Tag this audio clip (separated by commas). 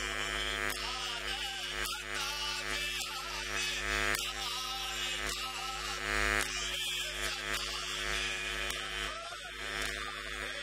Hum